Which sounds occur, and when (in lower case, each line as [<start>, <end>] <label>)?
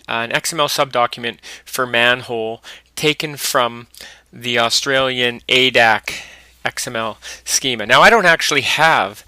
[0.00, 1.34] man speaking
[0.00, 9.25] mechanisms
[1.39, 1.62] breathing
[1.68, 2.59] man speaking
[2.59, 2.82] breathing
[2.93, 3.84] man speaking
[3.93, 4.25] breathing
[4.31, 5.35] man speaking
[5.46, 5.98] man speaking
[6.04, 6.50] breathing
[6.58, 7.17] man speaking
[7.19, 7.41] breathing
[7.45, 9.23] man speaking